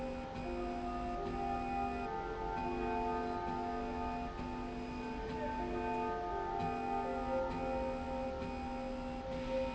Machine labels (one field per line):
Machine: slide rail